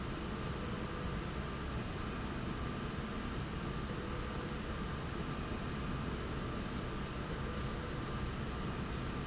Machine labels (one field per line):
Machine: slide rail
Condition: normal